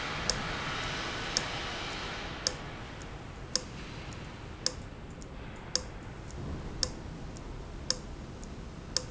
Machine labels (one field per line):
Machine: valve